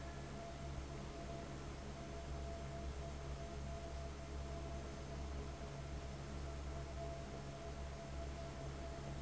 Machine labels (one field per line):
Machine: fan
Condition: abnormal